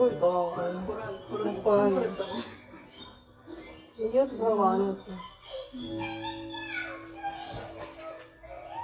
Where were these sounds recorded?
in a crowded indoor space